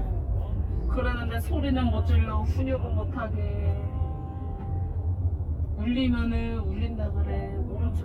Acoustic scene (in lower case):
car